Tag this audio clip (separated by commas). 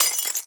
Shatter, Glass